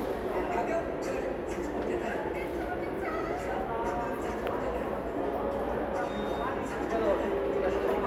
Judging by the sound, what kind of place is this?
subway station